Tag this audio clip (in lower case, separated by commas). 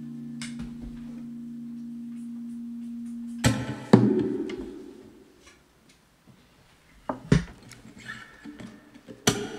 music, thunk